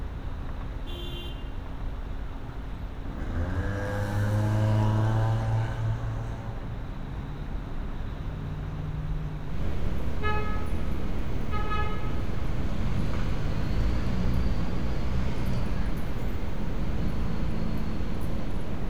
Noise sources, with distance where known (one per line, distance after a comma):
medium-sounding engine
car horn, near